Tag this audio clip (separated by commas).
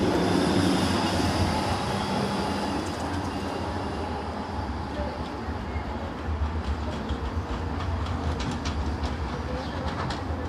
Speech, Vehicle